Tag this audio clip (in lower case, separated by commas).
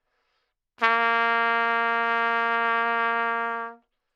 music, brass instrument, musical instrument, trumpet